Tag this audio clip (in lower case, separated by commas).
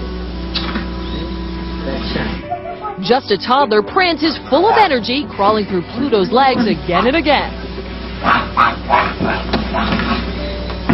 music, speech